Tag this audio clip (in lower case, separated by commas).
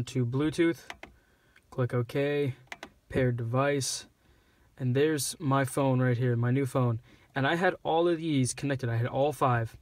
speech